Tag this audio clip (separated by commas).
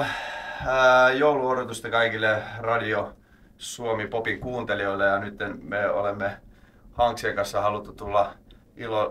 Speech